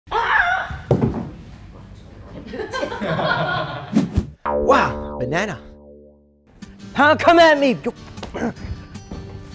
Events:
[0.05, 0.69] human voice
[0.05, 4.43] background noise
[0.85, 1.19] generic impact sounds
[1.30, 1.61] surface contact
[1.73, 2.04] human voice
[2.18, 2.39] surface contact
[2.44, 3.90] giggle
[3.90, 4.01] swoosh
[4.12, 4.26] swoosh
[4.42, 6.43] sound effect
[4.63, 4.98] male speech
[4.64, 7.91] conversation
[5.18, 5.55] male speech
[6.44, 9.54] music
[6.91, 7.89] male speech
[8.16, 8.24] generic impact sounds
[8.34, 8.52] human voice
[9.09, 9.19] generic impact sounds

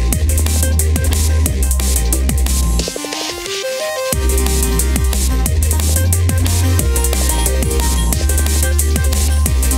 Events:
[0.00, 9.75] music

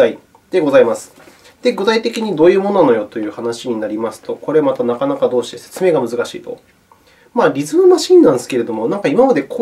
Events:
[0.00, 0.24] male speech
[0.00, 9.61] mechanisms
[0.28, 0.38] tick
[0.49, 1.08] male speech
[1.07, 1.54] surface contact
[1.59, 6.61] male speech
[2.29, 2.41] tick
[2.61, 2.73] tick
[3.06, 3.15] tick
[4.69, 4.79] tick
[6.38, 6.63] tick
[6.86, 6.96] tick
[7.00, 7.31] breathing
[7.33, 9.61] male speech

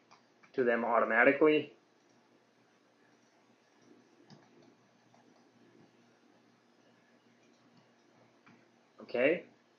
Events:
[0.00, 0.13] clicking
[0.00, 9.75] mechanisms
[0.42, 0.55] clicking
[0.53, 1.79] man speaking
[1.03, 1.13] clicking
[2.01, 2.23] clicking
[3.10, 3.31] clicking
[3.67, 3.91] clicking
[4.28, 4.38] clicking
[4.60, 4.70] clicking
[4.97, 5.19] clicking
[5.36, 5.47] clicking
[7.46, 7.63] clicking
[7.73, 7.84] clicking
[7.97, 8.09] clicking
[8.46, 8.58] clicking
[9.00, 9.49] man speaking

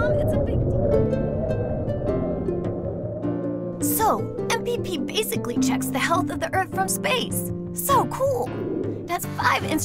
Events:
[0.00, 0.74] child speech
[0.00, 6.85] howl (wind)
[0.00, 9.84] music
[3.77, 4.24] child speech
[4.44, 4.94] child speech
[5.07, 7.48] child speech
[7.72, 8.43] child speech
[8.39, 9.30] howl (wind)
[9.05, 9.84] child speech

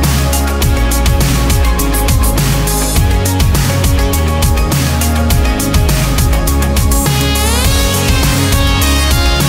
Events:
[0.00, 9.45] music

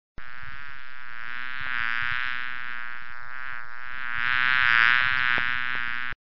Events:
[0.14, 6.12] buzz
[0.29, 0.67] noise
[1.52, 1.84] noise
[1.98, 2.22] noise
[3.43, 3.58] noise
[4.12, 4.37] noise
[4.98, 5.53] noise
[5.71, 5.78] noise

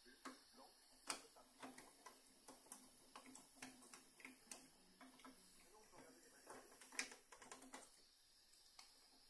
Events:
[0.00, 0.19] man speaking
[0.00, 6.50] conversation
[0.00, 9.25] mechanisms
[0.00, 9.25] white noise
[0.23, 0.38] clicking
[0.50, 0.75] man speaking
[0.96, 1.44] man speaking
[1.06, 1.21] generic impact sounds
[1.58, 1.65] clicking
[1.75, 1.84] clicking
[2.04, 2.15] clicking
[2.45, 2.58] clicking
[2.71, 2.83] clicking
[3.14, 3.37] clicking
[3.60, 3.70] clicking
[3.90, 3.99] clicking
[4.19, 4.28] clicking
[4.51, 4.60] clicking
[5.01, 5.07] clicking
[5.21, 5.32] clicking
[5.67, 6.50] man speaking
[5.94, 6.06] generic impact sounds
[6.48, 6.61] generic impact sounds
[6.82, 6.87] clicking
[7.00, 7.15] clicking
[7.33, 7.62] clicking
[7.74, 7.85] clicking
[8.76, 8.81] clicking

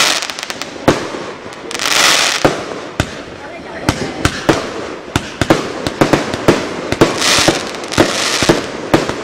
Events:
[0.00, 9.23] firecracker
[3.35, 4.49] speech

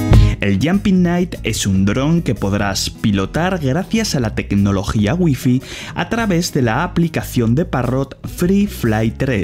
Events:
[0.00, 9.43] music
[0.09, 0.32] breathing
[0.38, 5.57] man speaking
[5.57, 5.91] breathing
[5.92, 8.02] man speaking
[8.25, 9.43] man speaking

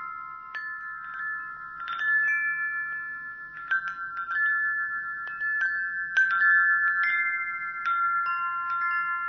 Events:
[0.00, 9.25] mechanisms
[0.00, 9.25] music

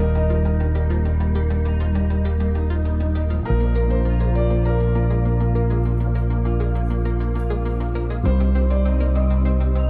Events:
[0.01, 9.85] music
[5.77, 6.24] surface contact
[6.72, 6.97] surface contact
[7.32, 7.69] surface contact

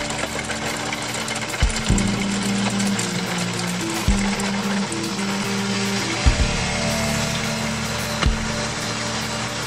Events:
[0.00, 9.65] motor vehicle (road)
[0.00, 9.65] music
[8.18, 8.27] generic impact sounds

